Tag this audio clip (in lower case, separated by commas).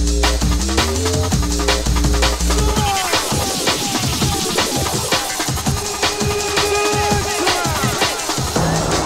drum and bass, music, electronic music